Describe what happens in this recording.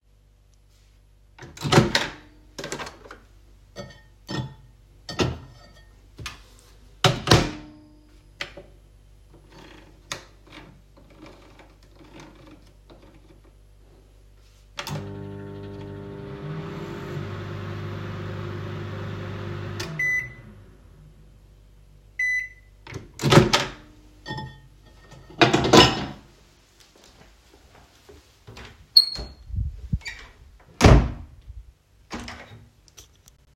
I recorded this scene while moving with the phone in the kitchen. The microwave sound is audible, and the door closing sound is also clearly present in the recording. Both target classes occur in one continuous scene.